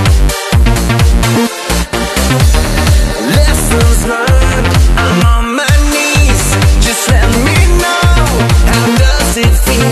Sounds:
music

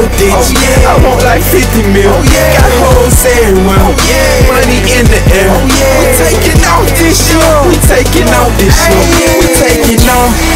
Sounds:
music, jazz

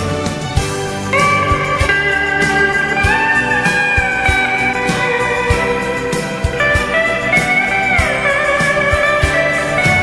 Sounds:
steel guitar, musical instrument, music

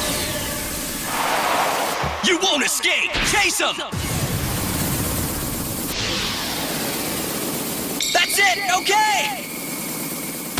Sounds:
speech

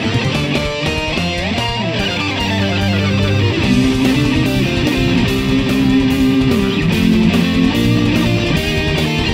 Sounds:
electric guitar, musical instrument, guitar, plucked string instrument, music

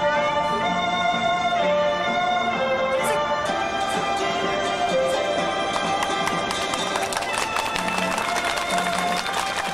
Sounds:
music

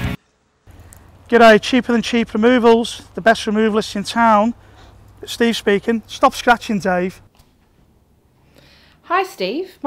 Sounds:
speech

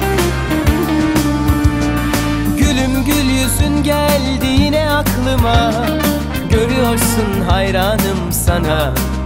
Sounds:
music

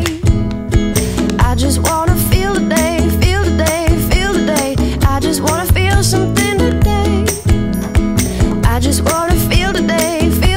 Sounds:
music, pop music

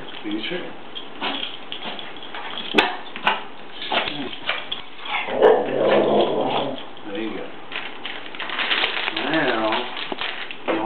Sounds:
speech

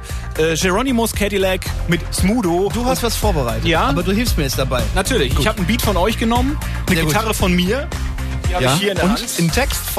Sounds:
radio, speech, music

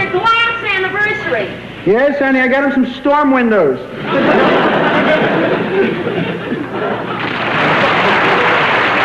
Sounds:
speech

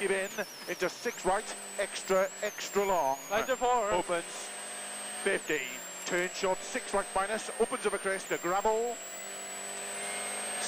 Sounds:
speech, car, vehicle, auto racing

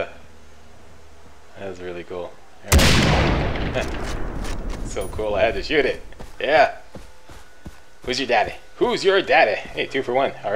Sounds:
gunfire

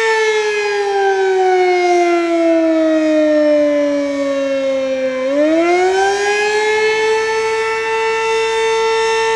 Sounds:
civil defense siren, siren

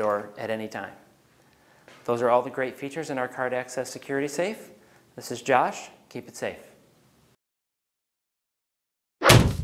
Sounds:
thwack

